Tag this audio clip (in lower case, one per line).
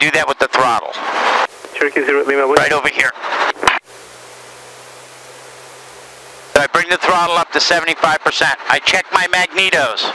speech